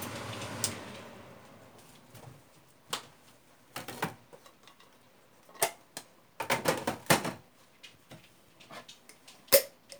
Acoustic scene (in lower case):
kitchen